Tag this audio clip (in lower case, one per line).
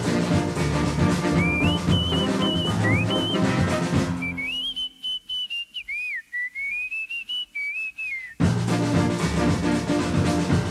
whistling